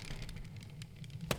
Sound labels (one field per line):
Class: window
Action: closing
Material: glass